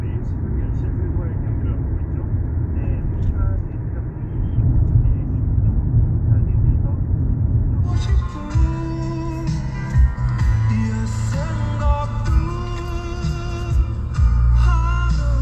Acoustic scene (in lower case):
car